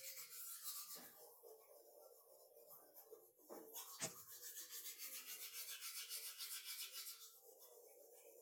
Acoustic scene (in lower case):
restroom